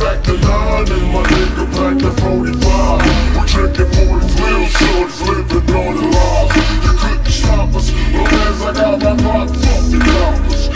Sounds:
Music

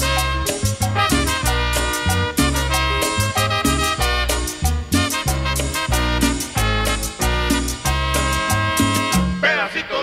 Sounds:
Music

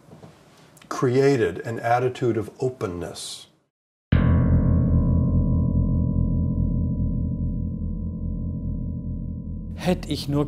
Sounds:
Speech, inside a large room or hall, Music

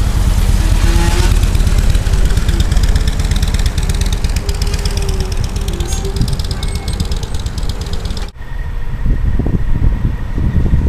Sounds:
Wind noise (microphone), Wind

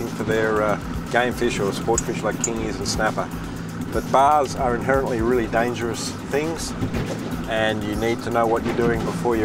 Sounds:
Speech, Music

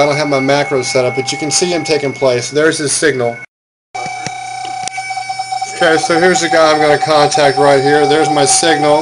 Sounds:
bleep, Speech

